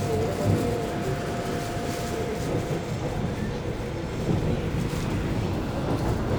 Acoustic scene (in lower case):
subway train